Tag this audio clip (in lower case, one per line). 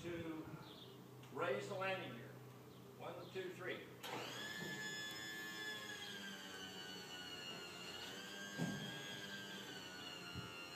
electric shaver
speech